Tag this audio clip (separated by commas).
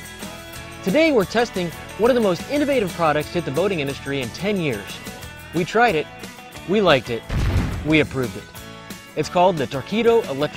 Music, Speech